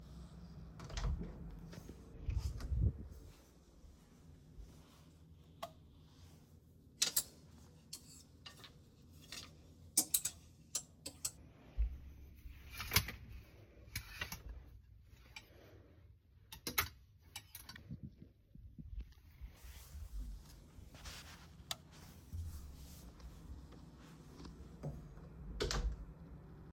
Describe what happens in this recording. I opened the wardrobe, moved clothes and closed it again.